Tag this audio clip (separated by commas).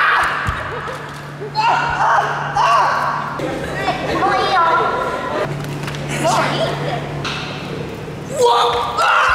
rope skipping